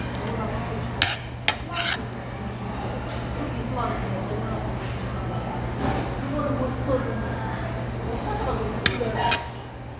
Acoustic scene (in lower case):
restaurant